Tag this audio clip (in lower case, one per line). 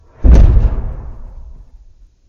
boom
explosion